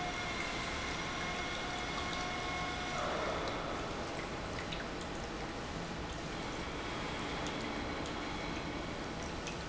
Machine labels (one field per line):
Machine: pump